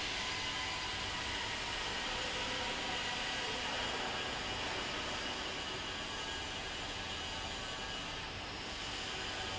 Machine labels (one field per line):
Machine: fan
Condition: abnormal